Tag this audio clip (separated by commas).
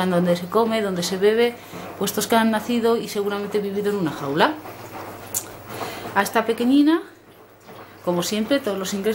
Speech, inside a small room